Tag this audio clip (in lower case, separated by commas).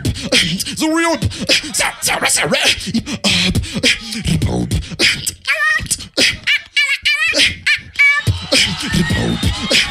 inside a large room or hall, beatboxing